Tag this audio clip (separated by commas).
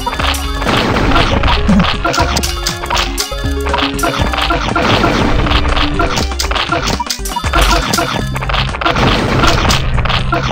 Music